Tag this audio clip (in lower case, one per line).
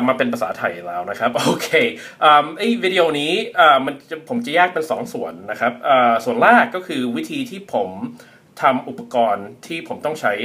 speech